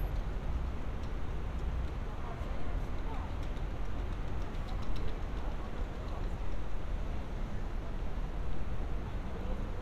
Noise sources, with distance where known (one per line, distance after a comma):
person or small group talking